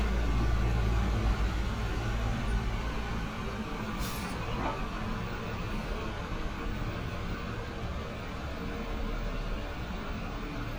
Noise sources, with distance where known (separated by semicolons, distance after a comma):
engine of unclear size